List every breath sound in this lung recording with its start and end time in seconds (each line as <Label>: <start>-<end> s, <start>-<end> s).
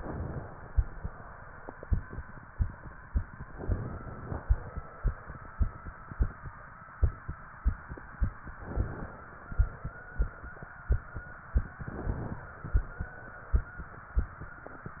Inhalation: 0.00-0.56 s, 3.52-4.42 s, 8.69-9.51 s, 11.68-12.50 s